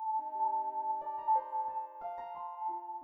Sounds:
keyboard (musical)
piano
musical instrument
music

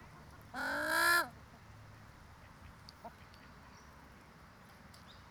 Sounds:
wild animals
livestock
fowl
animal
bird

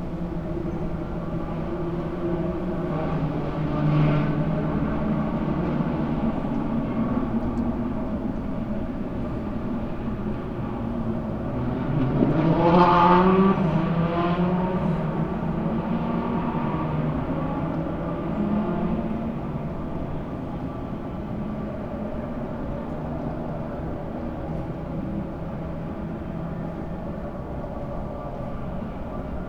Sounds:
vehicle
auto racing
motor vehicle (road)
car

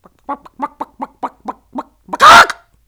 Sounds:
human voice

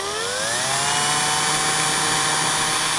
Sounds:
tools

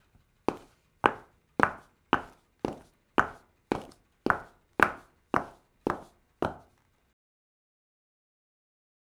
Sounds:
walk

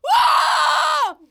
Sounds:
human voice
screaming

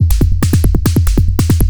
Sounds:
percussion
music
drum kit
musical instrument

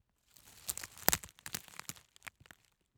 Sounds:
wood

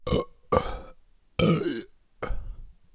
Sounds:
burping

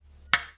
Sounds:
clock
mechanisms

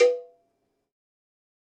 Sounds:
cowbell
bell

